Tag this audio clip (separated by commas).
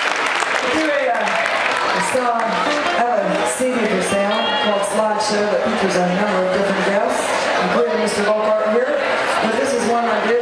Music, Musical instrument, Speech